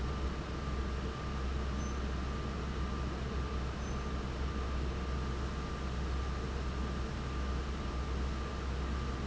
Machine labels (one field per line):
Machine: fan